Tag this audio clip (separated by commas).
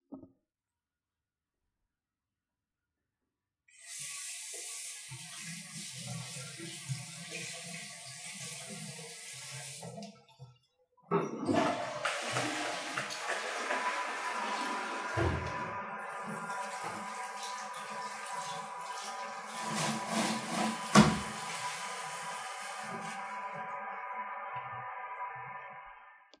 faucet, Domestic sounds